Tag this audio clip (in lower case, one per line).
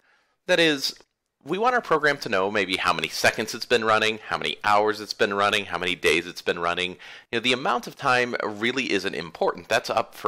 speech